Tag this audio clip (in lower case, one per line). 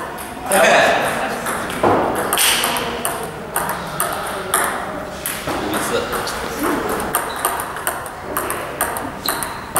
playing table tennis